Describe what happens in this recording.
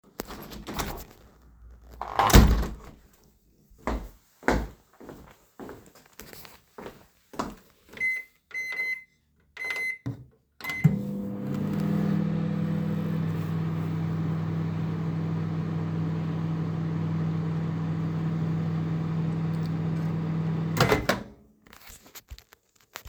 I am going to the kitchen, taking something out of the drawer to put into the microwave.